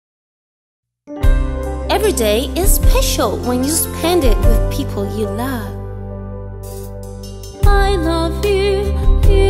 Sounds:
music, music for children

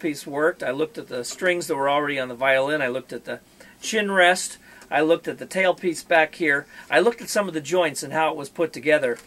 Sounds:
speech

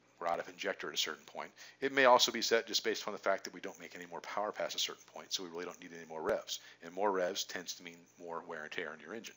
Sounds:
speech

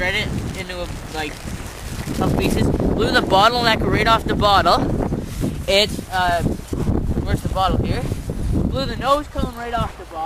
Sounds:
speech

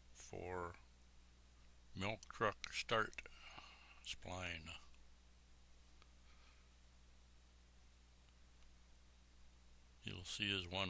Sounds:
speech

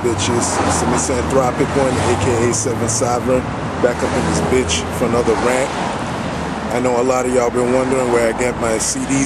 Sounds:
speech

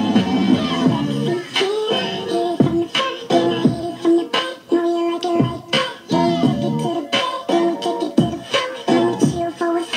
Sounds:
music

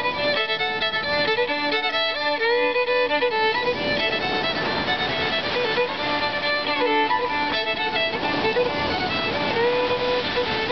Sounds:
fiddle, music

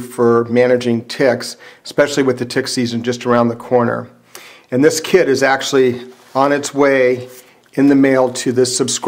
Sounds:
speech

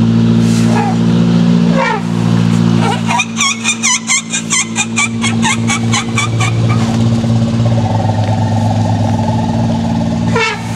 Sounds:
motor vehicle (road)

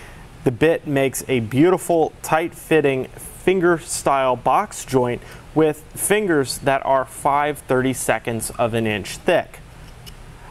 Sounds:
speech

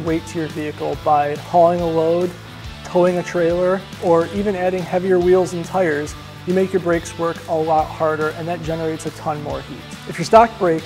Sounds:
music, speech

